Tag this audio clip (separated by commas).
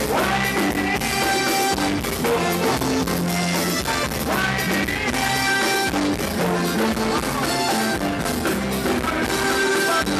Music